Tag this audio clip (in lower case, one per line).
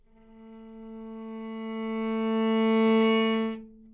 bowed string instrument
music
musical instrument